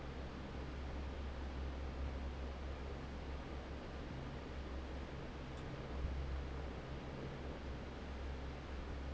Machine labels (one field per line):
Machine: fan